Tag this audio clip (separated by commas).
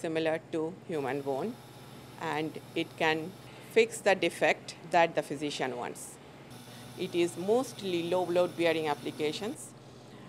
Speech